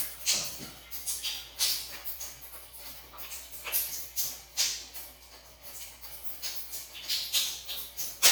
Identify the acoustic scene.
restroom